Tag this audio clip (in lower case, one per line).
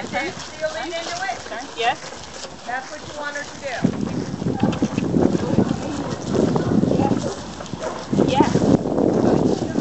domestic animals
animal
dog